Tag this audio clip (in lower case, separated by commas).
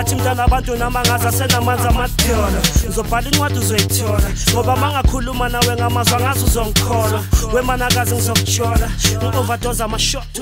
music